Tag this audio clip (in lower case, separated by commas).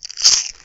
mastication